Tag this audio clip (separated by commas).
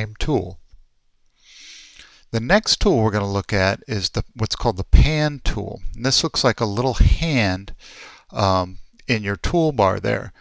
Speech